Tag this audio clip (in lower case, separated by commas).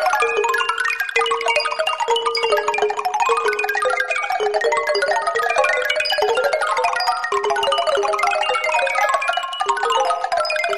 music, jingle (music)